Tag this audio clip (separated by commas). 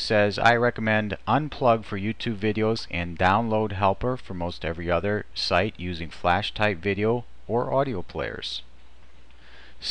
Speech